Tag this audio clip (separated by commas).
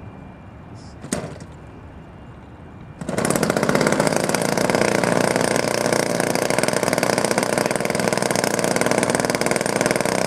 Speech